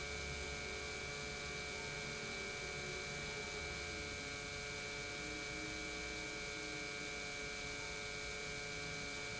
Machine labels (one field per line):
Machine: pump